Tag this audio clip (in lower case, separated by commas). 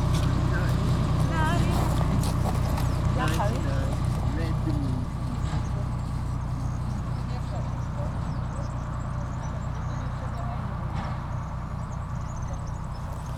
animal, wild animals, rail transport, bird, train, vehicle